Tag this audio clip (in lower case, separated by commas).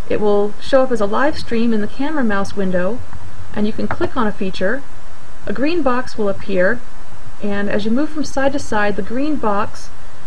speech